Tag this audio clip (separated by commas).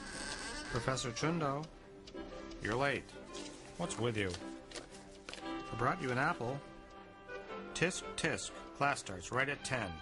Speech, Music, Tick